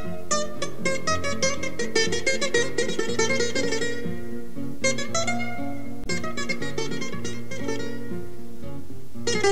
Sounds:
music

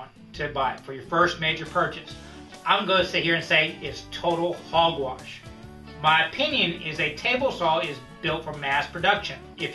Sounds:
music, speech

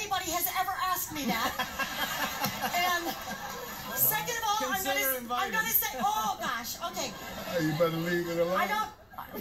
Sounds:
speech

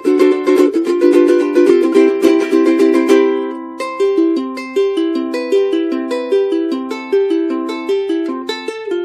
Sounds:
music

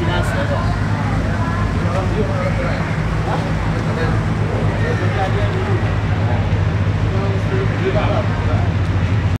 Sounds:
speech

